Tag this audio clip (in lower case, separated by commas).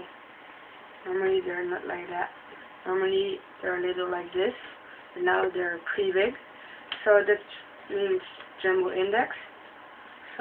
speech